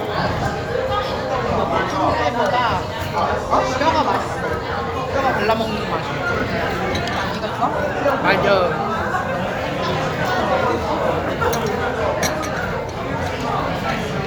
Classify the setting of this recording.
restaurant